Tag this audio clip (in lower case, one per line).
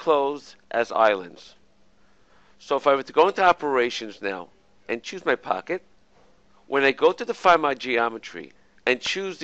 speech